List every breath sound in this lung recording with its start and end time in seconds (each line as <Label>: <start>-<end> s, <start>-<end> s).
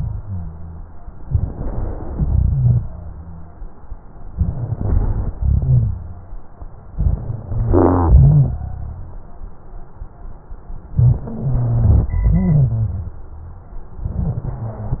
Inhalation: 1.23-2.13 s, 4.35-5.31 s, 6.95-7.72 s, 10.93-12.14 s, 14.08-15.00 s
Exhalation: 2.13-2.81 s, 5.39-6.30 s, 7.74-8.61 s, 12.14-13.19 s
Rhonchi: 2.13-3.53 s, 5.39-6.30 s, 7.74-9.26 s, 10.95-12.09 s, 12.14-13.19 s, 14.08-15.00 s
Crackles: 1.22-2.13 s, 4.35-5.31 s, 6.95-7.72 s